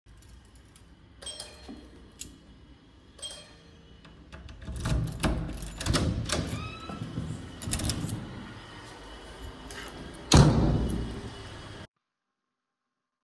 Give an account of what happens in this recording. I went to open the door when I heard the door bell ringing.